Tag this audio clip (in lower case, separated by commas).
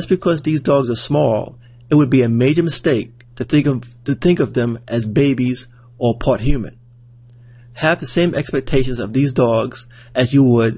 speech